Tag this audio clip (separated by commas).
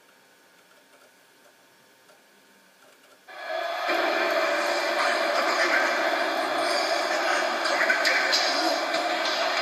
Music, Speech